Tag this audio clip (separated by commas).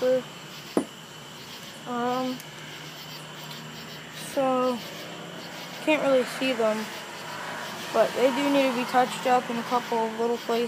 Speech